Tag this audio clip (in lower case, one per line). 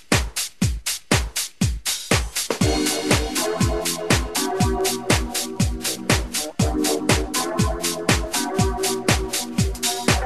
music